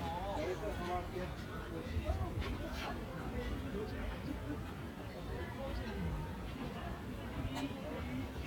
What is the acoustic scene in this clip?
park